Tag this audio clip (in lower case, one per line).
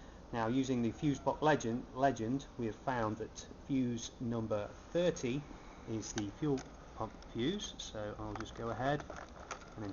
speech